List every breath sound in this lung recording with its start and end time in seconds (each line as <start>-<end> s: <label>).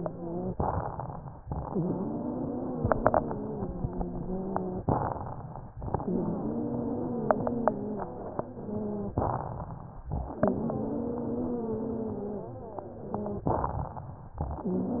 0.00-0.48 s: wheeze
0.48-1.37 s: inhalation
0.48-1.37 s: crackles
1.56-4.83 s: exhalation
1.56-4.83 s: wheeze
4.92-5.80 s: inhalation
4.92-5.80 s: crackles
5.86-9.14 s: exhalation
5.86-9.14 s: wheeze
9.17-10.05 s: inhalation
9.17-10.05 s: crackles
10.30-13.44 s: exhalation
10.30-13.44 s: wheeze
13.51-14.40 s: inhalation
13.51-14.40 s: crackles